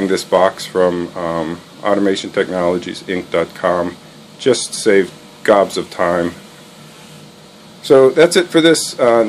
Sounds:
speech
inside a small room

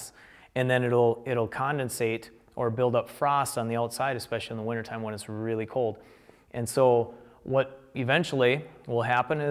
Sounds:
speech

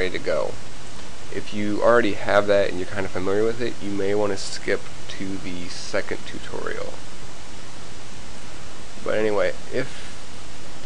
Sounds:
speech

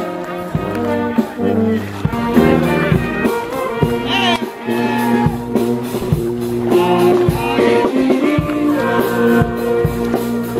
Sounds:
speech
music

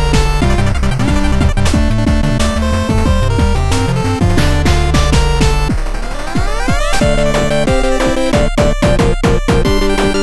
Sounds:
music
exciting music
rhythm and blues
jazz

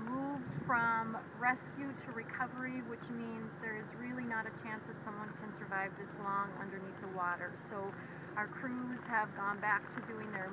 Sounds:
speech

